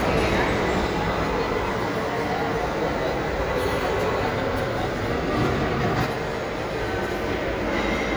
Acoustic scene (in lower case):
crowded indoor space